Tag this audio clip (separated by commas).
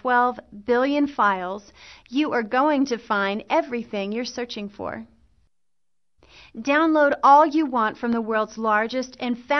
Speech